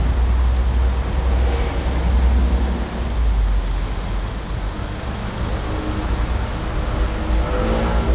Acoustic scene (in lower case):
street